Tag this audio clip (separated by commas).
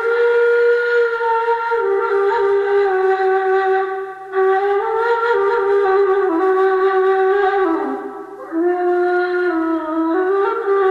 Music